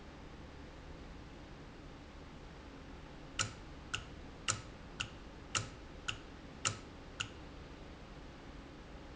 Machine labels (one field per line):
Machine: valve